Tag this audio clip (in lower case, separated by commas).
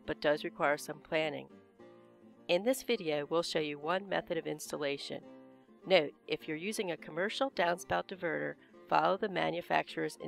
speech